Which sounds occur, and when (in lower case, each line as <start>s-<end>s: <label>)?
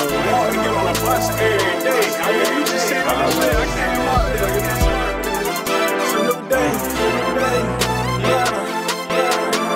0.0s-5.6s: male singing
0.0s-9.7s: music
6.0s-9.7s: male singing